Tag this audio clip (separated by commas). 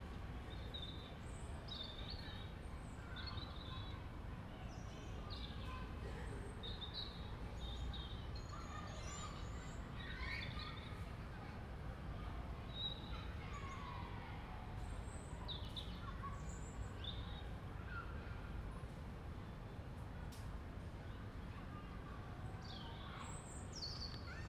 bird song, Bird, Animal, Wild animals, tweet